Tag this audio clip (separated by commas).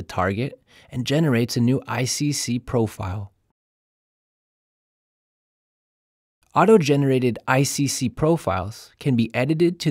Speech